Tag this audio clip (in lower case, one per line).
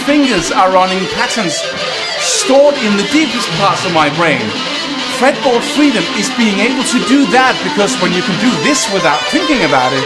speech
strum
music
musical instrument
plucked string instrument
guitar